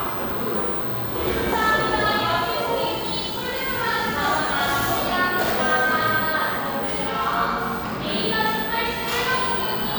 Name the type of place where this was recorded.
cafe